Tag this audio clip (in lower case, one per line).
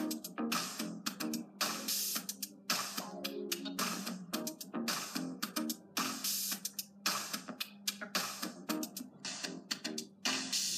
music